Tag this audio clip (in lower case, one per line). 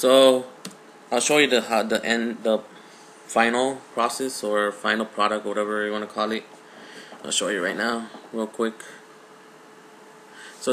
speech